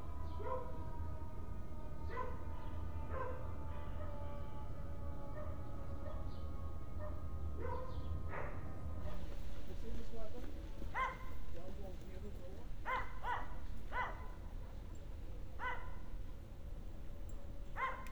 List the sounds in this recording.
dog barking or whining